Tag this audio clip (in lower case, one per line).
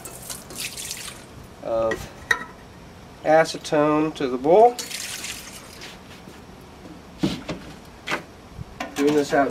speech